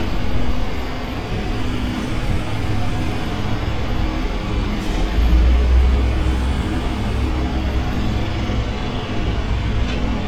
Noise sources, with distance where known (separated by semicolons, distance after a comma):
large-sounding engine